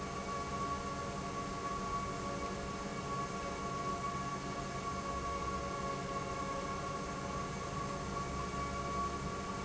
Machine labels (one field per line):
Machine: pump